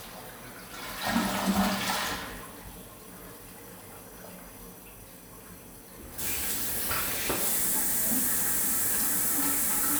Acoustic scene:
restroom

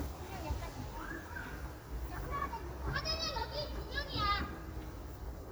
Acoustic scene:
residential area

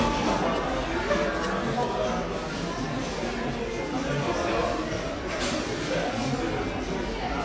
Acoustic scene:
cafe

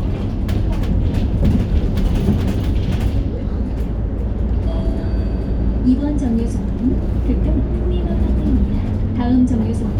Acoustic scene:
bus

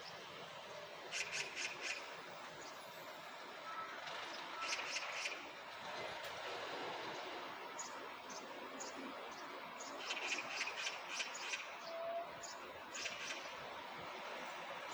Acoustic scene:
park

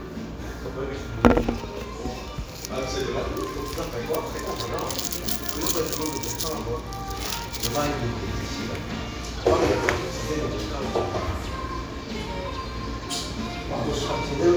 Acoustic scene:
restaurant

